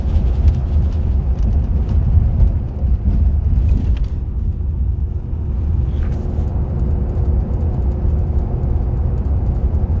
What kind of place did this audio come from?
car